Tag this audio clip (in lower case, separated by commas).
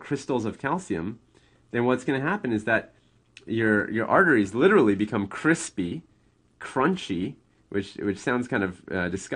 speech, monologue